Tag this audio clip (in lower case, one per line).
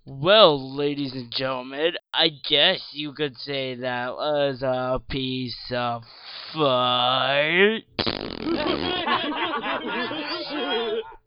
human voice
laughter